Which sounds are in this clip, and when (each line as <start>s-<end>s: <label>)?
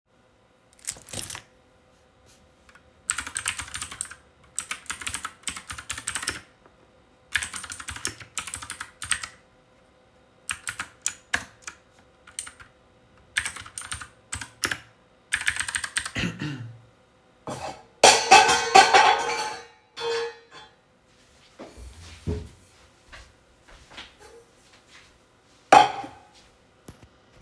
0.7s-1.7s: keys
2.8s-16.8s: keyboard typing
22.7s-26.5s: footsteps